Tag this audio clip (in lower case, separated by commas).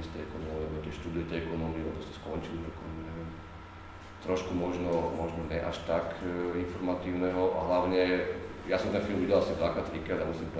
speech